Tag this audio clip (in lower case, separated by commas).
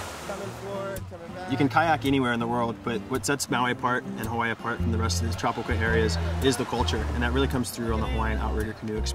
music, speech, rowboat